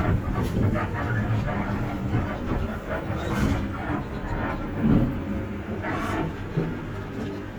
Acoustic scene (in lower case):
bus